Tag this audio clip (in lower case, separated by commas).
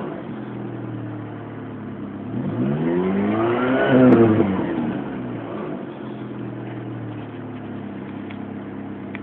vroom, car, vehicle